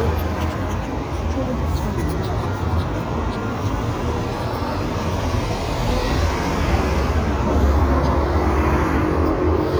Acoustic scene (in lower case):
street